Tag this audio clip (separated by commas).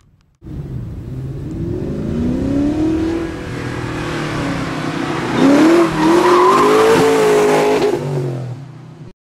Car, Skidding, Car passing by, Vehicle, Motor vehicle (road)